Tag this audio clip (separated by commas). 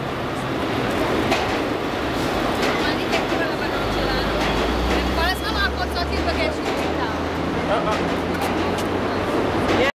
Speech